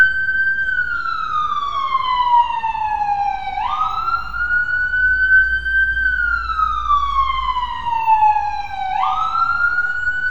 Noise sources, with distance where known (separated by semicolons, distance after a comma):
siren, near